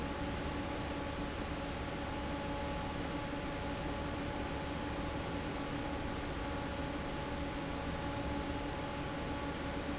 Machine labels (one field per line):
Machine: fan